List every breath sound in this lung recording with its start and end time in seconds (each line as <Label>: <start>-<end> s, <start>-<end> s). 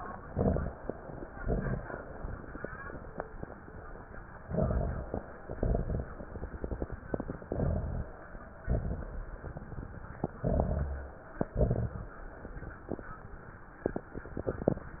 Inhalation: 0.19-0.78 s, 4.48-5.22 s, 7.50-8.20 s, 10.38-11.18 s
Exhalation: 1.31-1.90 s, 5.43-6.13 s, 8.63-9.43 s, 11.59-12.18 s
Crackles: 0.19-0.78 s, 1.31-1.90 s, 4.48-5.22 s, 5.43-6.13 s, 7.50-8.20 s, 8.63-9.43 s, 10.38-11.18 s, 11.59-12.18 s